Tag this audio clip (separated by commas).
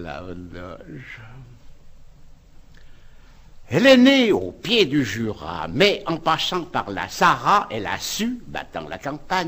Speech, Narration